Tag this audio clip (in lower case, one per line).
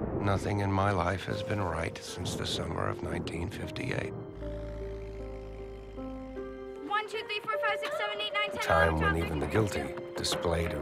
music
speech